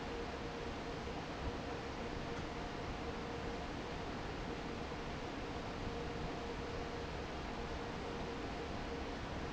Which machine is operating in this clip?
fan